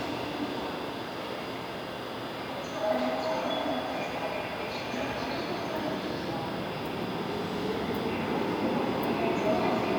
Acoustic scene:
subway station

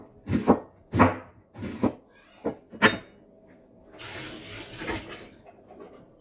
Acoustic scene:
kitchen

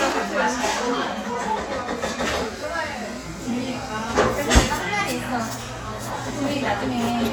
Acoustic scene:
cafe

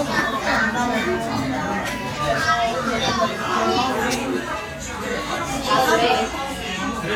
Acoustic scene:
restaurant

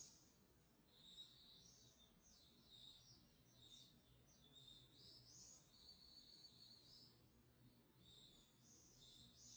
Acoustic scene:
park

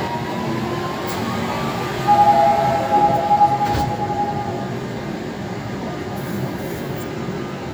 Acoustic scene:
subway train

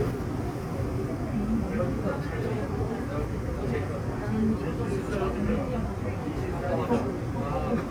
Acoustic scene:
subway train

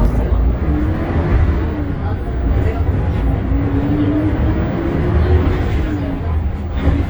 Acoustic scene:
bus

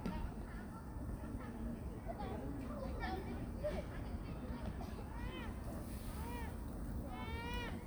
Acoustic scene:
park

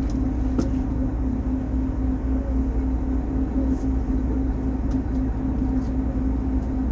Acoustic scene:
bus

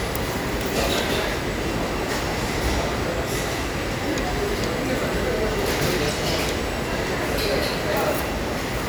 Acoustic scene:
crowded indoor space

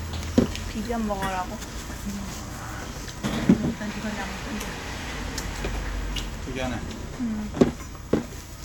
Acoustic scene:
restaurant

